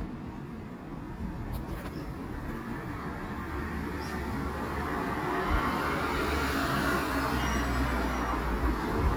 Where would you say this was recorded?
in a residential area